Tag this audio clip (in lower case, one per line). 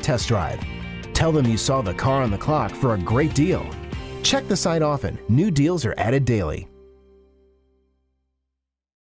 music
speech